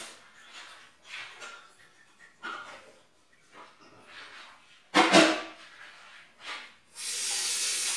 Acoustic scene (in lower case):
restroom